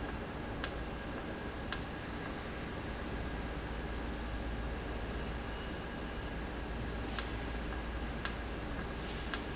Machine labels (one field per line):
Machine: valve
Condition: normal